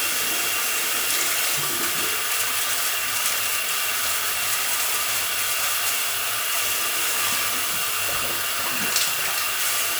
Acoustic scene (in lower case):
restroom